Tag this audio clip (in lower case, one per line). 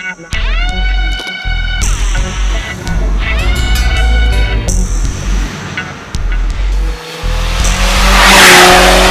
car
vehicle